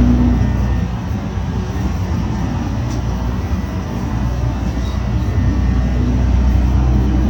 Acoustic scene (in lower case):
bus